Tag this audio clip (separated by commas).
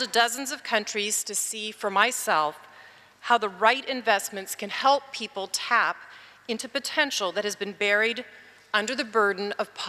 Speech, woman speaking